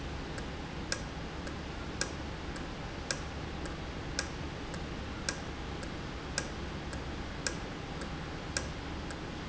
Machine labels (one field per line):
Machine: valve